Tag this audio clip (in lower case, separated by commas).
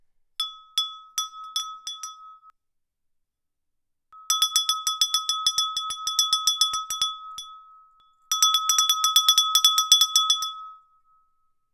bell